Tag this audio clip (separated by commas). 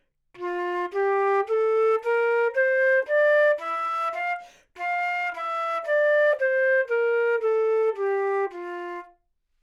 Musical instrument, Wind instrument, Music